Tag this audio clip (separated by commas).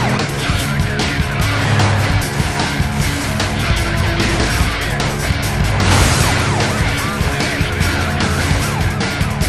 Music, Vehicle